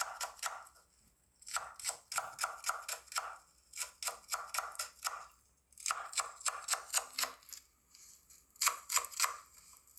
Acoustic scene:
kitchen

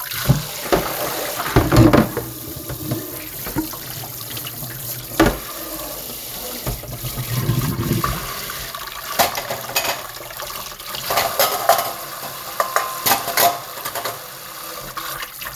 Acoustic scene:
kitchen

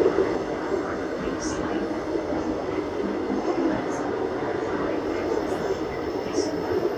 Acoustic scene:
subway train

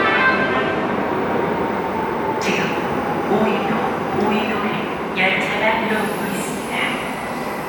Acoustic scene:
subway station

